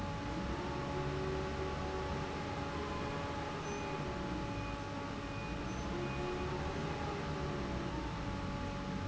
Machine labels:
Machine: fan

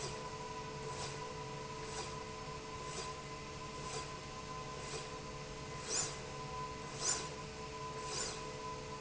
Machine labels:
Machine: slide rail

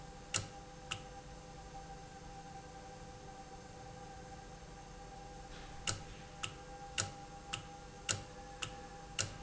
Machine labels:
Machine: valve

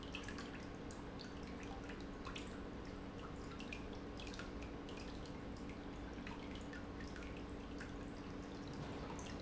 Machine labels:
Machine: pump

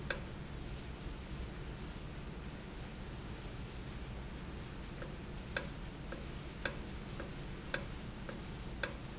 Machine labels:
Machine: valve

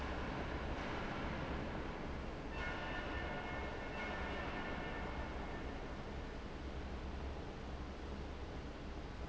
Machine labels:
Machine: fan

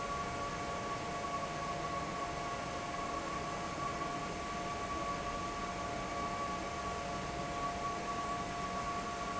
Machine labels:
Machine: fan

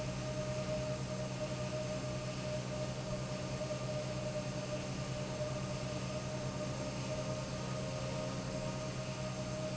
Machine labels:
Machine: pump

